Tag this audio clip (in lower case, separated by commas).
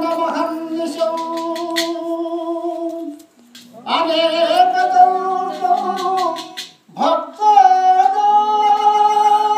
vocal music, singing, music